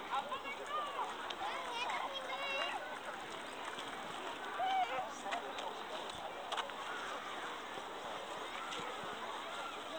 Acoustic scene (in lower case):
park